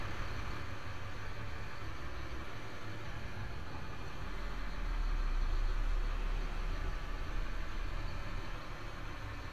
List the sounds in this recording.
engine of unclear size